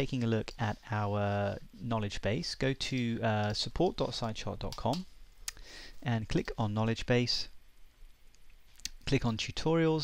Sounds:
Speech

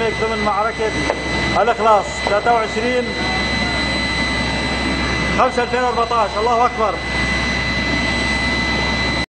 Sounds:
Speech, outside, urban or man-made

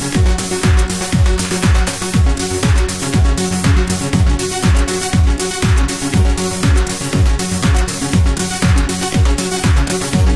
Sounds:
Music, Disco

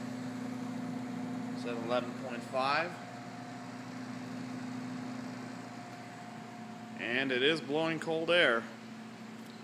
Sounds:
Air conditioning, Speech

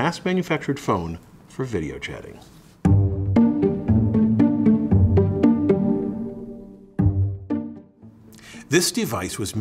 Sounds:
Speech, Music

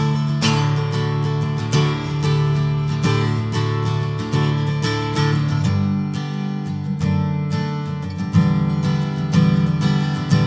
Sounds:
playing acoustic guitar, Musical instrument, Acoustic guitar, Guitar, Plucked string instrument, Music, Strum

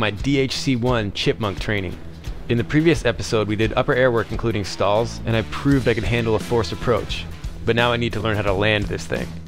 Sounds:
Speech, Music

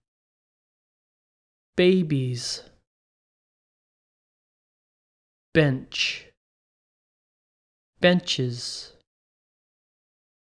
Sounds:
Silence, Speech

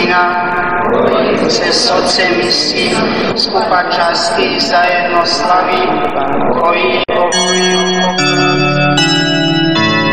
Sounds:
Ding

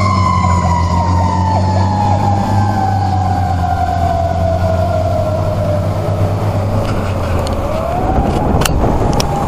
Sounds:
Vehicle, Engine, Car, Idling, Medium engine (mid frequency)

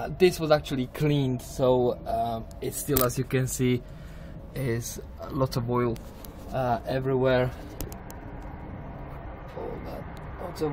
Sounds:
Speech

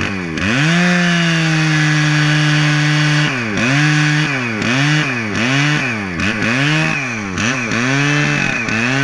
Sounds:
chainsawing trees, Chainsaw

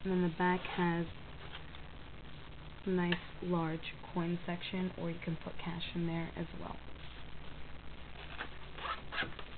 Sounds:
Speech

